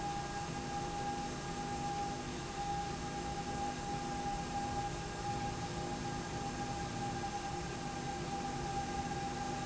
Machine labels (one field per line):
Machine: slide rail